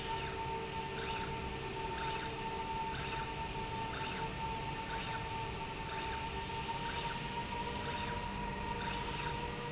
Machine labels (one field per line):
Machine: slide rail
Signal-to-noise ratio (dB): -6 dB